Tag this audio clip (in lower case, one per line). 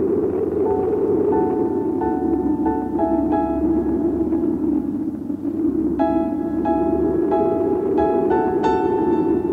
music